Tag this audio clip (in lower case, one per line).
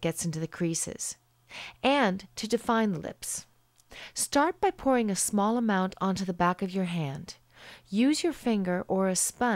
narration